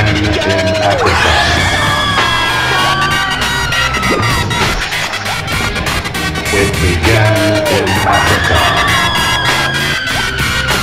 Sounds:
music

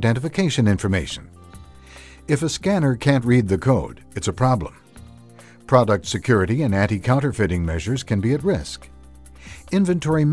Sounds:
speech, music

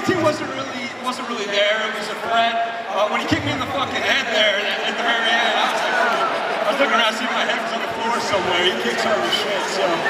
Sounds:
narration, man speaking, speech

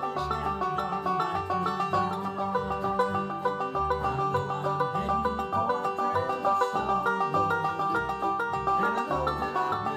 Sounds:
bluegrass, plucked string instrument, music, guitar, playing banjo, musical instrument, banjo, country

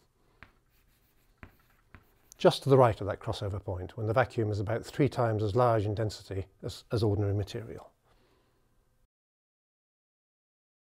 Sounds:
writing, inside a small room, speech

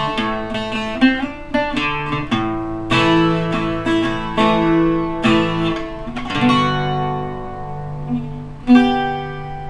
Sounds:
guitar, plucked string instrument, mandolin, strum, music, acoustic guitar, musical instrument

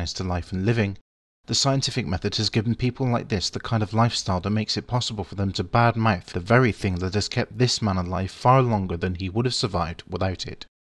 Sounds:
speech

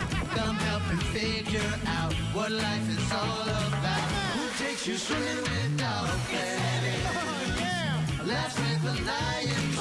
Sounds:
speech, music

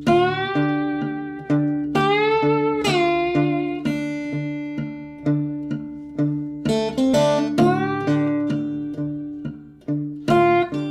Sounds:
playing steel guitar

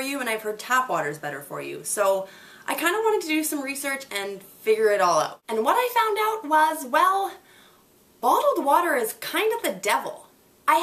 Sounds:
speech

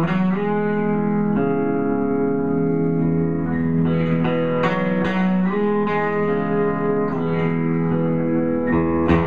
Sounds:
musical instrument, music, guitar

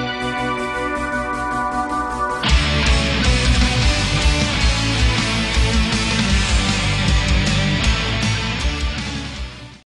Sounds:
music

